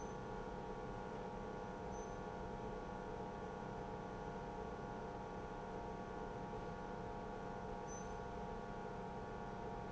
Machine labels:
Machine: pump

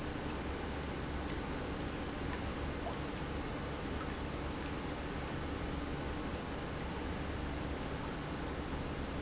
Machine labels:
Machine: pump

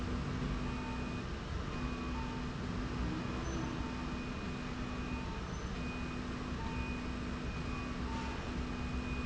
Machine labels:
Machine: slide rail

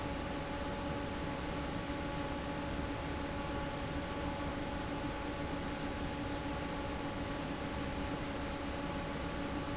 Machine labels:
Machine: fan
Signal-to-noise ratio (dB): -6 dB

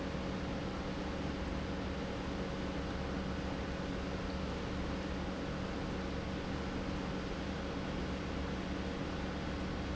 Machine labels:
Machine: pump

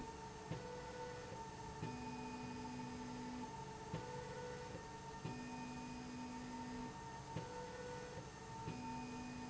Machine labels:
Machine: slide rail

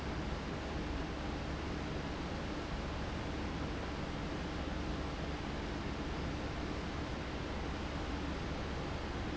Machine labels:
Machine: fan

